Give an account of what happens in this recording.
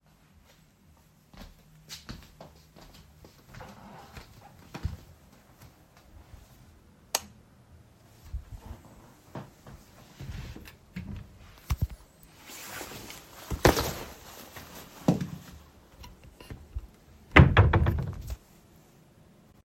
I walked towards my bedroom. I switched the light on. I opened the closet, took my jacket and closed it again.